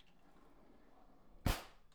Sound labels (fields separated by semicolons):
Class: drawer; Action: opening; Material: wooden